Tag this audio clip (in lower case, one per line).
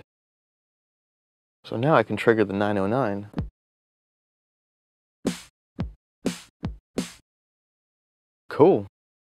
inside a small room
music
musical instrument
speech